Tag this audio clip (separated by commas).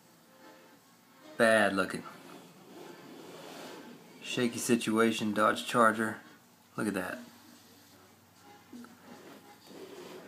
Speech, inside a small room